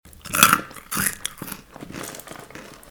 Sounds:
mastication

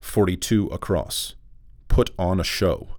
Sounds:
Speech, Male speech, Human voice

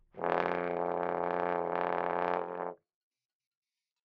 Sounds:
Music, Brass instrument, Musical instrument

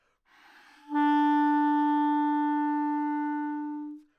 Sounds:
Musical instrument, Music, woodwind instrument

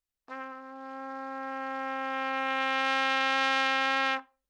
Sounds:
Music, Brass instrument, Trumpet, Musical instrument

